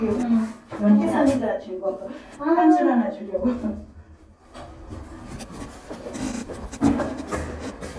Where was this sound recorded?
in an elevator